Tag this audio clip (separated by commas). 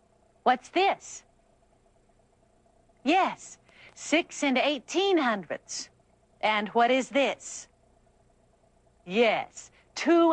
Speech